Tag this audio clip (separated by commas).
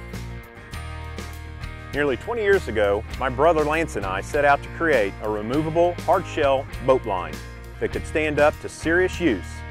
Music, Speech